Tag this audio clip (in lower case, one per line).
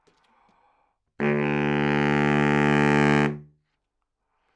music
musical instrument
woodwind instrument